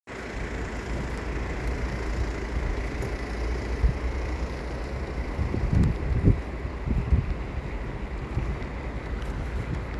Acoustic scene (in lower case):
residential area